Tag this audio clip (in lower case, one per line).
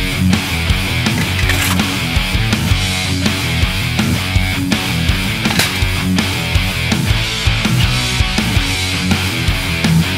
music